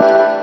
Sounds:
music, keyboard (musical), piano, musical instrument

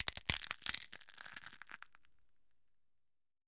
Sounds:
crushing

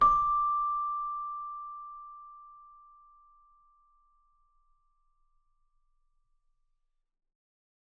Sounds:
musical instrument, music, keyboard (musical)

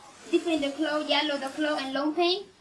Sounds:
speech, human voice

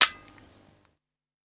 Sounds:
camera, mechanisms

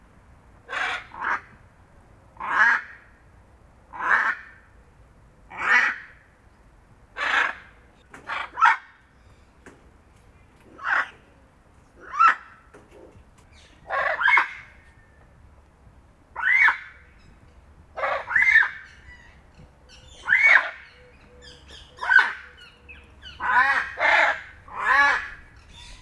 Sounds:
wild animals, bird, bird song, animal

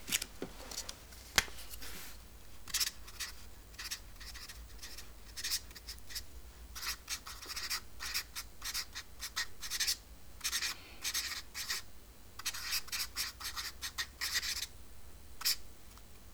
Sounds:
writing, home sounds

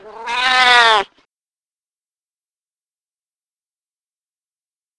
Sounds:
animal, pets, cat, meow

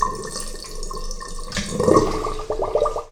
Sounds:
sink (filling or washing), home sounds

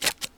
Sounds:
scissors, domestic sounds

